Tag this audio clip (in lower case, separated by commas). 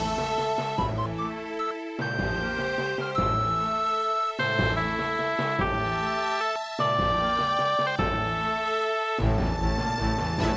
music